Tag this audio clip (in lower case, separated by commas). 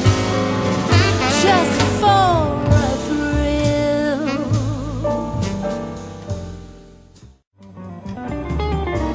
musical instrument, music